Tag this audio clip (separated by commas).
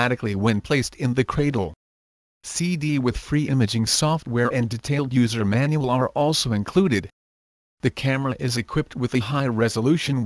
Speech